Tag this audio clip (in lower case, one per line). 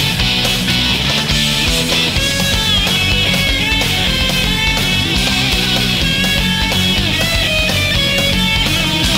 music